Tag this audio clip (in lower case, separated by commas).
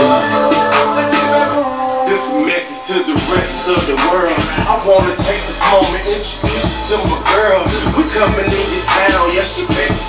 music